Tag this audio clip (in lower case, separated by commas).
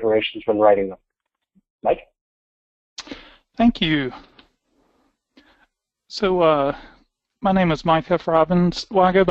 speech